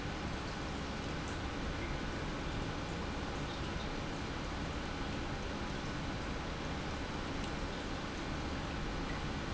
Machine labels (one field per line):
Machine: pump